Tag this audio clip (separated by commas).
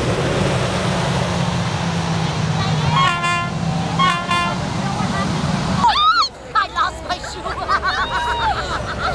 Speech, Water vehicle, Vehicle